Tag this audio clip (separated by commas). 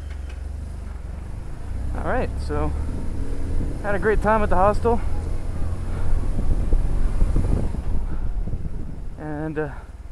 Vehicle, Speech, Motorcycle